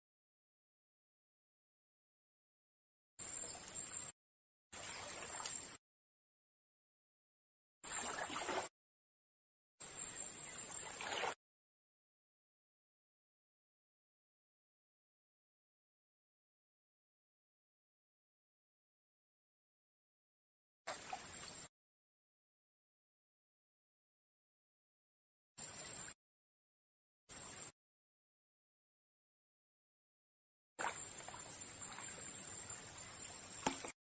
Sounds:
Vehicle, Rail transport, Human voice, Train

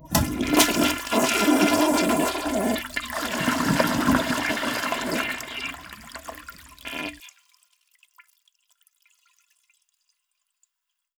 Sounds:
Toilet flush, home sounds

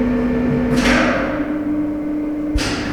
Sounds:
Mechanisms

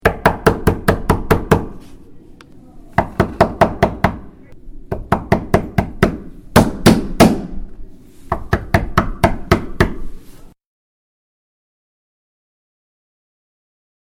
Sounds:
home sounds, Door, Knock

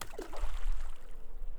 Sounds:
Liquid, Splash

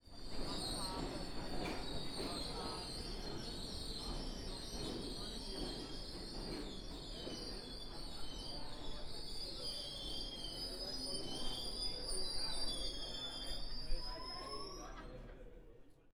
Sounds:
Vehicle, Rail transport, underground, Screech

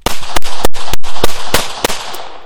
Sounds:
Explosion, gunfire

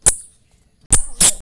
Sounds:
Wild animals, Animal

